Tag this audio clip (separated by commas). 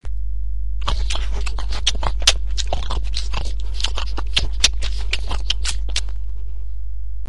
Chewing